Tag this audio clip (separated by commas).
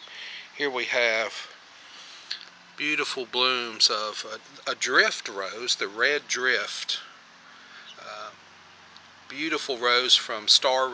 Speech